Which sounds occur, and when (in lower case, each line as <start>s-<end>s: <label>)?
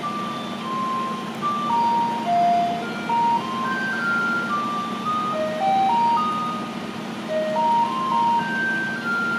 0.0s-9.3s: heavy engine (low frequency)
7.3s-9.3s: music